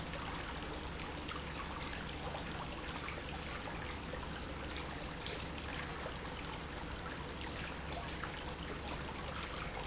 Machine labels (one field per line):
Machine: pump